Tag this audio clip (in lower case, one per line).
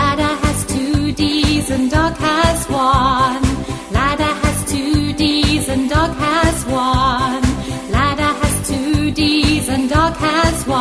music